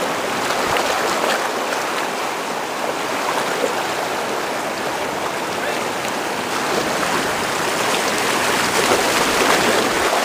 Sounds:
Rowboat, Waves, canoe, Water vehicle

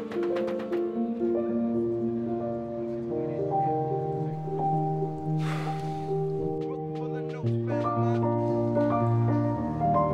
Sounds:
Music

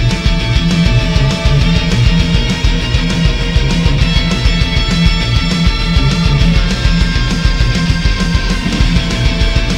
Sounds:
Music

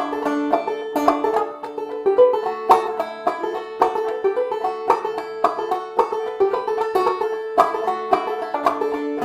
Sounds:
Musical instrument, Banjo, playing banjo, Music, Plucked string instrument

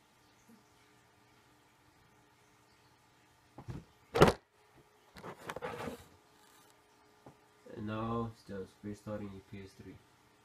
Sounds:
Speech

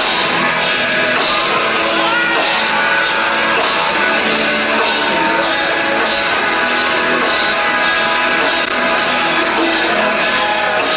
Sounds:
Music

